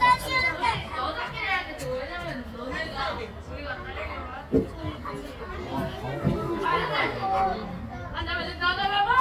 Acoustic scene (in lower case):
park